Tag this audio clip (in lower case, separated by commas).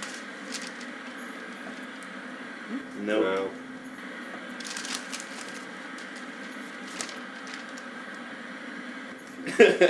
speech, television